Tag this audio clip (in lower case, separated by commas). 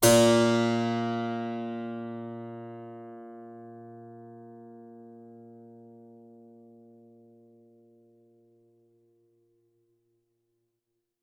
musical instrument, music, keyboard (musical)